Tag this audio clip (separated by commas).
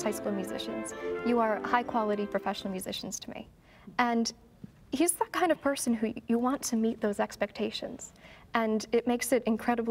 Speech, inside a large room or hall, Music